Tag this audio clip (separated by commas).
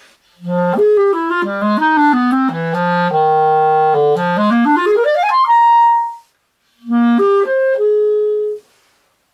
Musical instrument, Music, Clarinet, woodwind instrument